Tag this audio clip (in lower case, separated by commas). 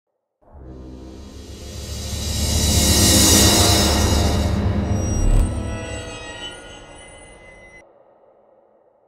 whoosh, music